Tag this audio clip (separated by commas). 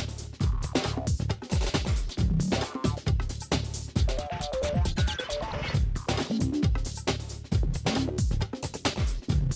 Speech, Music